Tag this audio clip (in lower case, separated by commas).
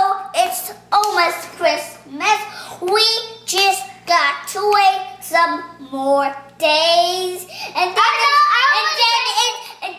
kid speaking, hands, child singing